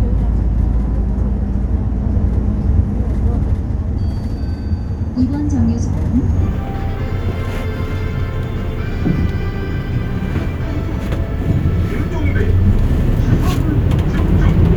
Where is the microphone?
on a bus